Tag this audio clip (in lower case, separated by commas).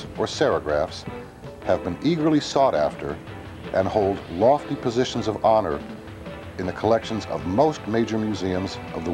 speech, music